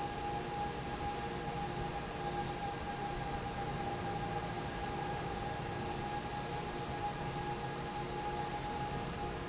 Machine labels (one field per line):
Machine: fan